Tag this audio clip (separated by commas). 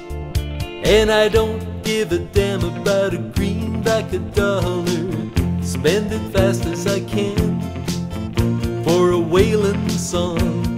Music